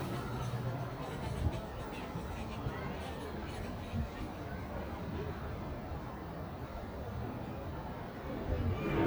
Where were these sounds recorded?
in a residential area